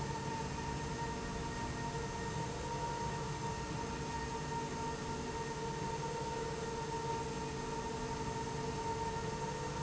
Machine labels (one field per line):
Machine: slide rail